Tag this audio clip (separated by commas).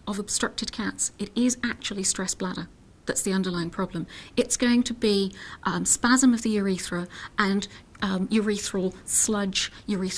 Speech